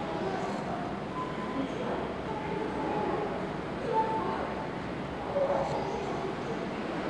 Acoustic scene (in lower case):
subway station